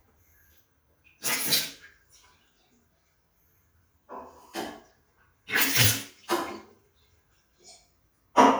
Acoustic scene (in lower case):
restroom